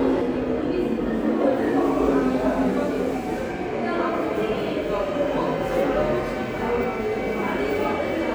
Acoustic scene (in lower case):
subway station